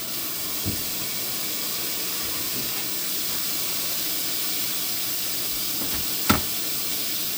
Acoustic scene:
kitchen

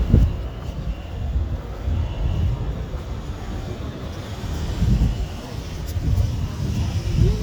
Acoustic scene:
residential area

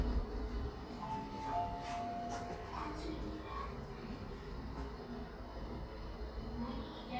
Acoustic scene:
elevator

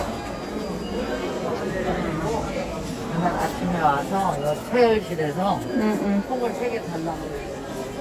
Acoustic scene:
crowded indoor space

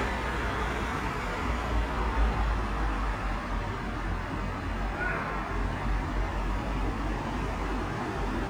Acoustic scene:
street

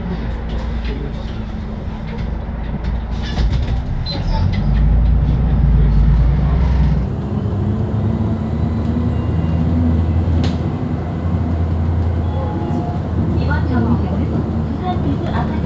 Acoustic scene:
bus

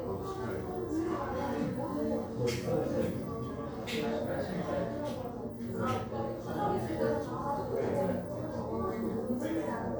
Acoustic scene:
crowded indoor space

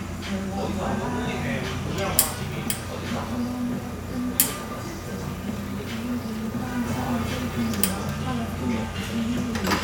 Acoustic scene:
cafe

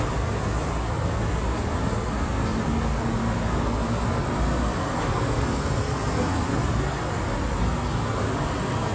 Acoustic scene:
street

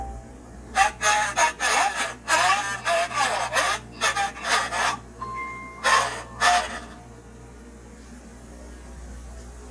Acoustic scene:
kitchen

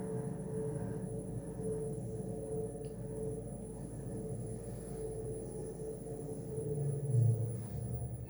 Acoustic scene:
elevator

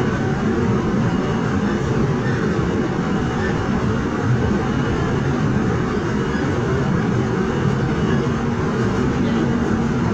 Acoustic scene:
subway train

